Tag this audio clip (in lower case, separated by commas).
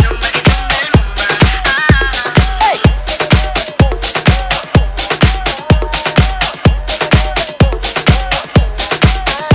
music, electronic music, techno